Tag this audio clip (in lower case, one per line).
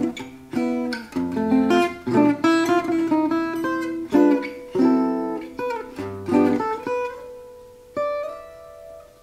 music
acoustic guitar
guitar
musical instrument
plucked string instrument